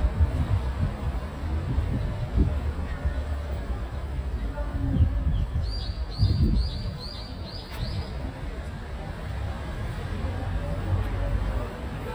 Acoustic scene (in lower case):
street